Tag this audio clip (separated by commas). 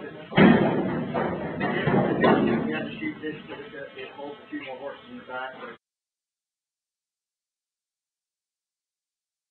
Speech